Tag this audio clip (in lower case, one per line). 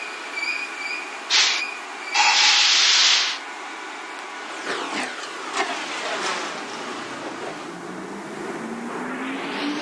railroad car
train
vehicle